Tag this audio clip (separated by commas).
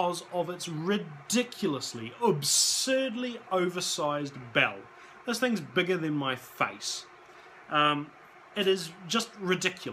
Speech